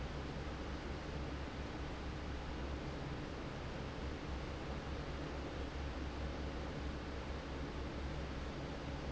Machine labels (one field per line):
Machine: fan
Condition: normal